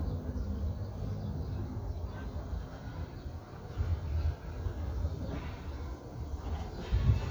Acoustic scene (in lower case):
park